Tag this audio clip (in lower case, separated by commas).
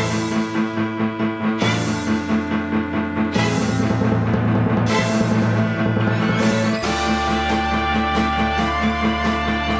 music